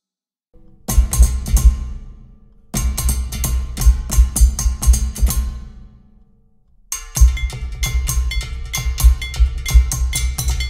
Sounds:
music

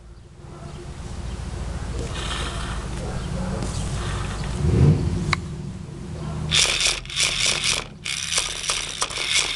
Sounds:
car, vehicle

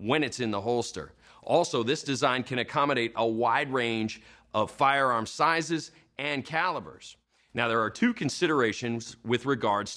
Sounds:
speech

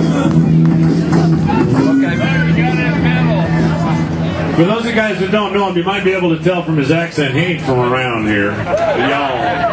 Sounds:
music, speech

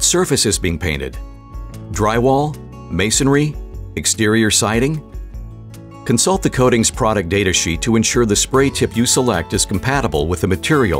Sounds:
speech, music

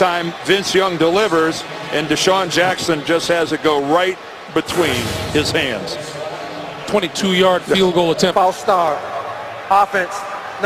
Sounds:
speech

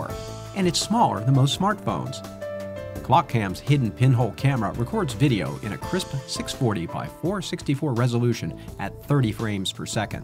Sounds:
music, speech

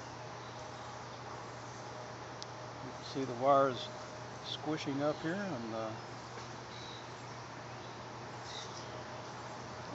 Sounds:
speech, bee or wasp

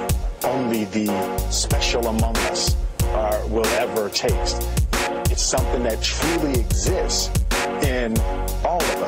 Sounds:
music

